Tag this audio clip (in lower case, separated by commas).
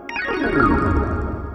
music, musical instrument, organ, keyboard (musical)